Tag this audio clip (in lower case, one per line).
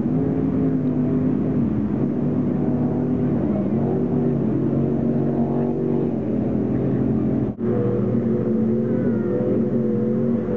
vehicle
motorboat
boat